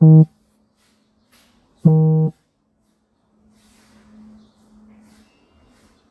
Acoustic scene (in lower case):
residential area